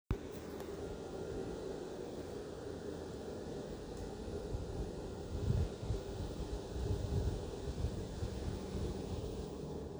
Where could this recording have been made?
in an elevator